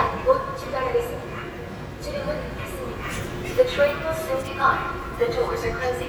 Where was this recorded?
on a subway train